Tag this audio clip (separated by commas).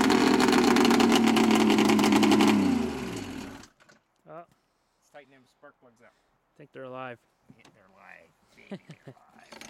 outside, rural or natural, Speech, Vehicle